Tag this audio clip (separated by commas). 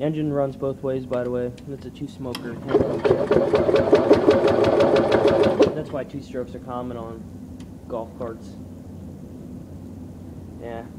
Speech, Vehicle, Engine